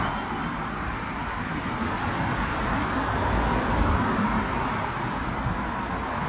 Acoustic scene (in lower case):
street